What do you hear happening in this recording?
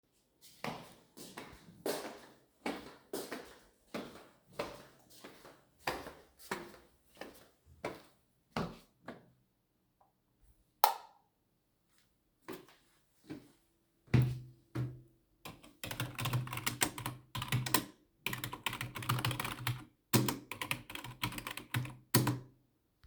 I walked towards my room and switched on the light then I walked towards the keybord and start typing on the keyboard